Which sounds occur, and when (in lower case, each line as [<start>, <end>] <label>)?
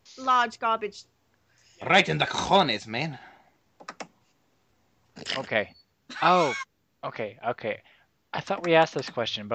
[0.00, 9.54] background noise
[0.06, 0.46] noise
[0.15, 9.54] conversation
[0.16, 1.05] female speech
[1.60, 1.89] noise
[1.82, 3.19] male speech
[3.16, 3.53] breathing
[3.82, 4.04] clicking
[5.15, 5.70] male speech
[5.15, 5.70] human voice
[5.67, 5.87] beep
[6.11, 6.64] generic impact sounds
[6.13, 6.66] human voice
[6.19, 6.54] male speech
[7.03, 7.34] male speech
[7.43, 7.85] male speech
[7.85, 8.08] breathing
[8.36, 9.54] male speech
[8.47, 8.53] clicking
[8.63, 8.70] clicking
[8.80, 9.08] clicking